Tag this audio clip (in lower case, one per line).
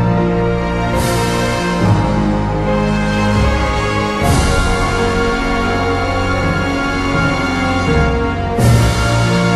theme music
soundtrack music
music